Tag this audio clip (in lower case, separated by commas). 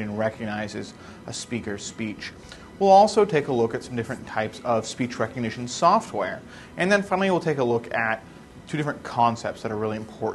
narration, male speech, speech